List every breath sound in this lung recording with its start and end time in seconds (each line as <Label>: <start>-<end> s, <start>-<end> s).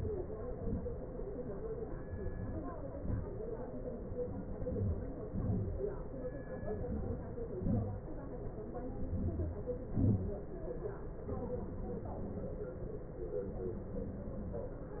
Inhalation: 4.63-5.22 s, 6.91-7.41 s, 9.12-9.67 s
Exhalation: 5.34-5.79 s, 7.60-8.03 s, 9.92-10.47 s